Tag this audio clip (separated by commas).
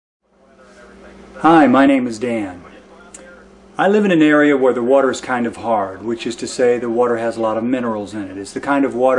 Speech